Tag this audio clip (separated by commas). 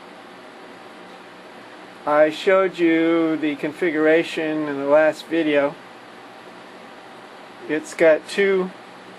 Speech